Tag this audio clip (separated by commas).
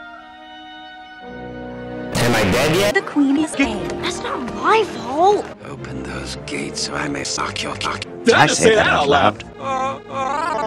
Speech, Music